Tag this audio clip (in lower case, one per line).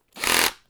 tools